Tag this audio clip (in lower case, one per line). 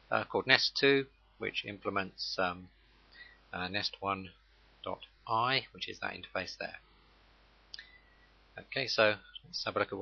speech